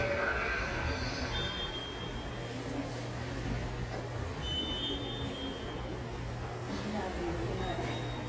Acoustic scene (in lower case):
subway station